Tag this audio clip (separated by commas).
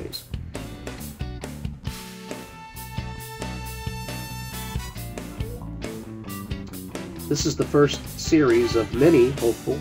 Speech, Music